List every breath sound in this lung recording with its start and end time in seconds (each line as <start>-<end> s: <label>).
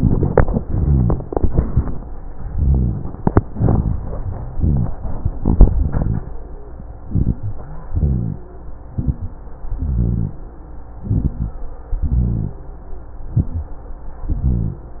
7.04-7.51 s: inhalation
7.04-7.50 s: crackles
7.89-8.46 s: exhalation
7.89-8.46 s: rhonchi
8.90-9.41 s: inhalation
8.90-9.41 s: crackles
9.79-10.36 s: exhalation
9.79-10.36 s: rhonchi
11.01-11.52 s: inhalation
11.01-11.52 s: crackles
12.03-12.60 s: exhalation
12.03-12.60 s: rhonchi
13.24-13.76 s: inhalation
13.24-13.76 s: crackles
14.27-14.84 s: exhalation
14.27-14.84 s: rhonchi